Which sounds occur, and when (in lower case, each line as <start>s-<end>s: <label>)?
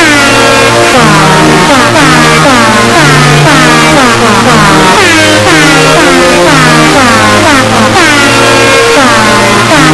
0.0s-9.9s: music